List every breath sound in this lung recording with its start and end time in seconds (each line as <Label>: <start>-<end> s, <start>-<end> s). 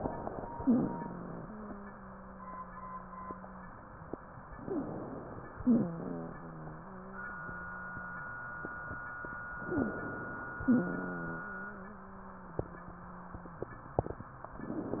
Inhalation: 0.00-0.61 s, 4.57-5.58 s, 9.71-10.66 s
Wheeze: 0.61-3.74 s, 4.57-4.86 s, 5.60-8.26 s, 9.71-10.00 s, 10.70-13.68 s